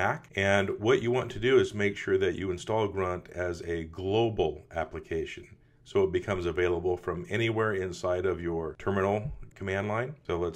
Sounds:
Speech

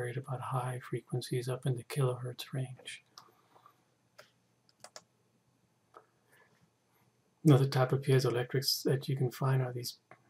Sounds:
Speech

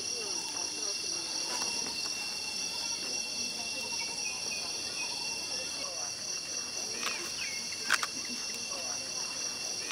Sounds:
Environmental noise, Camera

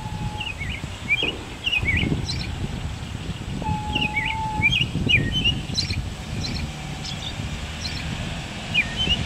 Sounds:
Bird

